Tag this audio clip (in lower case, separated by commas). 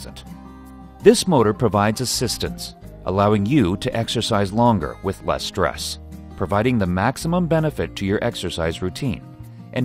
speech, music